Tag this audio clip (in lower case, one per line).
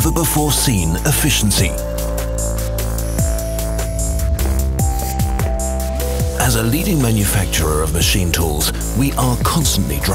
music
speech